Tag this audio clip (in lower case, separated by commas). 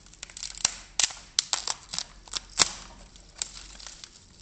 wood